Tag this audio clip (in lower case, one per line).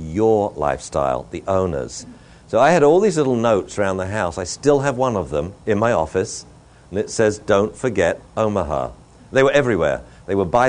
speech